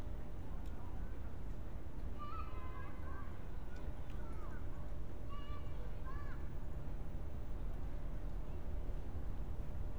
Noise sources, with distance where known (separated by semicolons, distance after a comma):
unidentified human voice, far